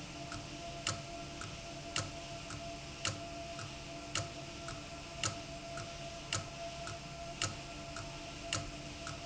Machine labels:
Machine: valve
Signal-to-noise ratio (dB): 0 dB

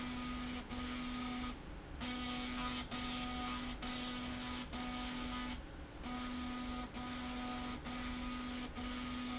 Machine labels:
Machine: slide rail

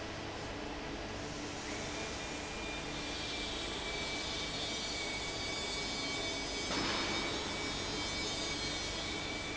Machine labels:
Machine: fan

